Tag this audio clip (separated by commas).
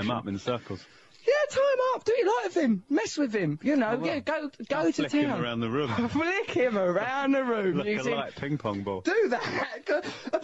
Speech